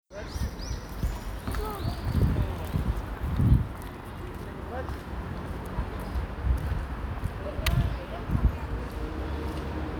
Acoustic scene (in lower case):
park